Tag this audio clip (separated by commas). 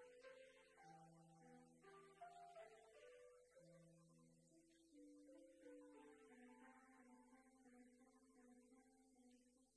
Musical instrument, Music